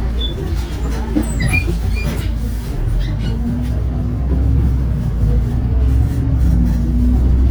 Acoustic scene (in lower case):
bus